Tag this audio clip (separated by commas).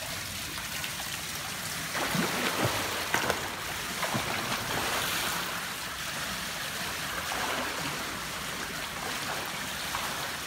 swimming